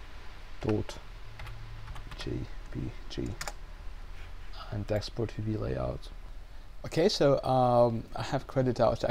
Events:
0.0s-9.1s: mechanisms
0.6s-0.7s: computer keyboard
0.6s-0.8s: male speech
1.3s-1.5s: computer keyboard
1.8s-2.2s: computer keyboard
2.1s-2.5s: male speech
2.7s-2.9s: male speech
3.1s-3.4s: male speech
3.2s-3.6s: computer keyboard
4.1s-4.3s: surface contact
4.5s-4.7s: surface contact
4.5s-6.1s: male speech
4.8s-5.0s: clicking
6.4s-6.7s: breathing
6.8s-8.0s: male speech
8.1s-9.1s: male speech

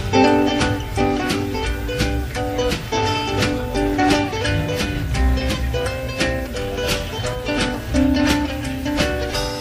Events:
0.0s-9.6s: music

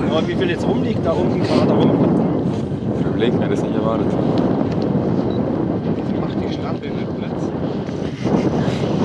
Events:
0.0s-1.9s: man speaking
0.0s-7.5s: conversation
0.0s-9.0s: eruption
0.0s-9.0s: wind noise (microphone)
3.2s-4.3s: man speaking
4.3s-4.4s: tick
4.7s-4.8s: tick
5.3s-5.4s: beep
6.0s-7.5s: man speaking

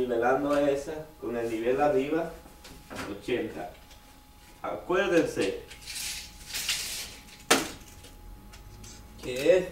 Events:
0.0s-1.1s: man speaking
0.0s-9.7s: mechanisms
1.2s-2.4s: man speaking
2.6s-2.7s: tick
2.9s-3.2s: generic impact sounds
3.2s-3.7s: man speaking
3.9s-4.0s: tick
4.4s-4.6s: breathing
4.7s-4.9s: generic impact sounds
4.7s-5.6s: man speaking
5.7s-5.8s: tick
5.8s-6.3s: generic impact sounds
6.4s-7.3s: generic impact sounds
6.7s-6.7s: tick
7.3s-7.4s: tick
7.5s-8.2s: generic impact sounds
8.1s-8.1s: tick
8.5s-8.6s: tick
8.8s-9.0s: generic impact sounds
9.2s-9.7s: man speaking

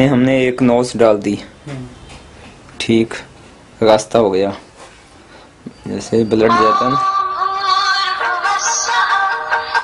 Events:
0.0s-7.0s: conversation
0.0s-9.8s: background noise
0.0s-1.5s: man speaking
0.5s-0.6s: tick
1.2s-1.2s: tick
1.6s-1.9s: man speaking
1.7s-1.8s: generic impact sounds
1.9s-2.3s: brief tone
2.1s-2.3s: generic impact sounds
2.4s-2.6s: generic impact sounds
2.6s-2.7s: tick
2.7s-3.3s: man speaking
3.1s-3.2s: generic impact sounds
3.8s-4.6s: man speaking
4.7s-5.1s: generic impact sounds
5.3s-5.5s: generic impact sounds
5.7s-5.7s: tick
5.7s-5.9s: bleep
5.8s-7.0s: man speaking
6.0s-6.3s: bleep
6.4s-9.8s: music
6.4s-9.8s: mantra

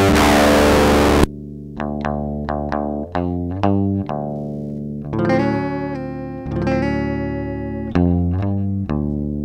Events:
0.0s-9.4s: effects unit
0.0s-9.4s: music

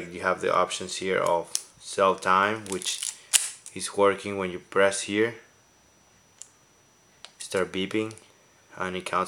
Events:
0.0s-1.4s: man speaking
0.0s-9.2s: mechanisms
1.2s-1.3s: tick
1.5s-1.6s: tick
1.8s-3.0s: man speaking
2.2s-2.3s: tick
2.6s-3.1s: generic impact sounds
3.3s-3.6s: single-lens reflex camera
3.6s-3.7s: tick
3.7s-4.6s: man speaking
4.7s-4.7s: tick
4.7s-5.4s: man speaking
6.4s-6.4s: tick
7.2s-7.3s: tick
7.4s-8.2s: man speaking
8.1s-8.1s: tick
8.7s-9.2s: man speaking
9.0s-9.1s: tick

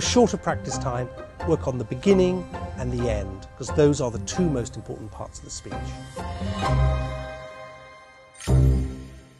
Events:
0.0s-1.1s: man speaking
0.0s-9.3s: music
1.4s-2.4s: man speaking
2.5s-3.4s: man speaking
3.6s-6.1s: man speaking

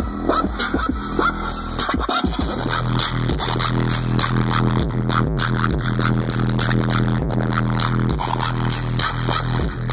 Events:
0.0s-9.9s: music

